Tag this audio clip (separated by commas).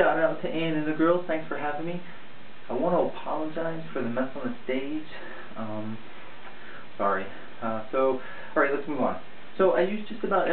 Speech, inside a small room